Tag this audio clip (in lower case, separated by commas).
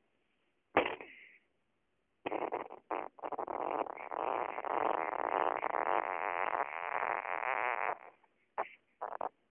people farting, inside a small room, fart